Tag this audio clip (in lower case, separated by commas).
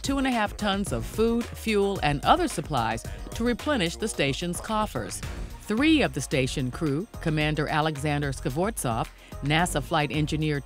music, speech